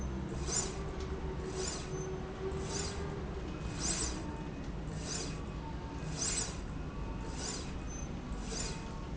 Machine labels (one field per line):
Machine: slide rail